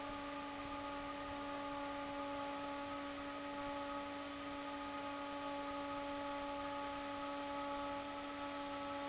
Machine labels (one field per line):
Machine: fan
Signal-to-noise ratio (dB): 6 dB